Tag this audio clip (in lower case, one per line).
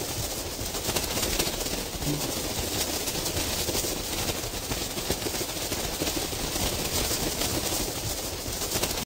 sound effect